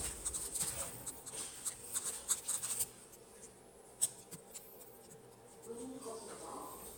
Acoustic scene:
elevator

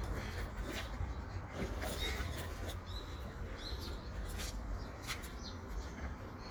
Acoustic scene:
park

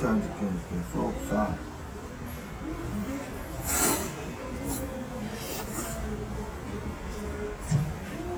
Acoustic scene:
restaurant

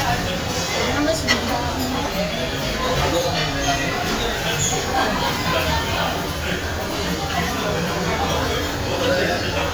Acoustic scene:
crowded indoor space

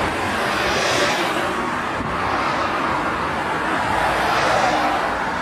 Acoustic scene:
street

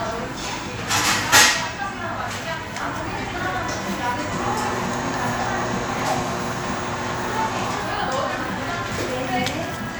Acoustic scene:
crowded indoor space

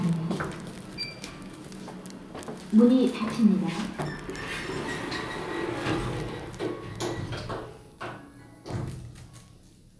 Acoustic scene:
elevator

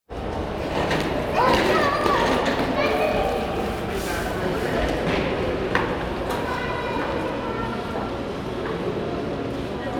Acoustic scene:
crowded indoor space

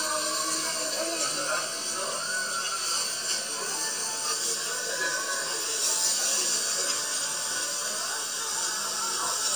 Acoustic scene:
restaurant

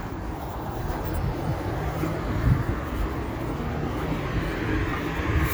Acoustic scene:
street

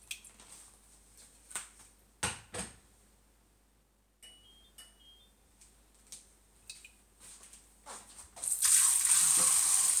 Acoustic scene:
kitchen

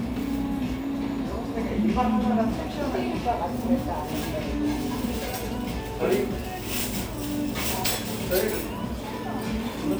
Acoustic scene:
restaurant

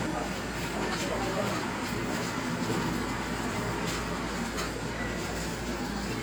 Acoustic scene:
cafe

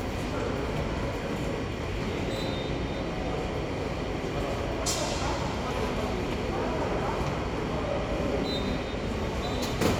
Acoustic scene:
subway station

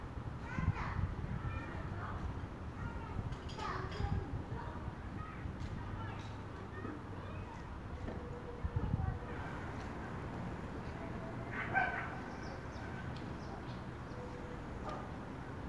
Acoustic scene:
residential area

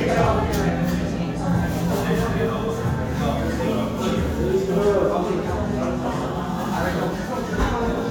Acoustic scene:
restaurant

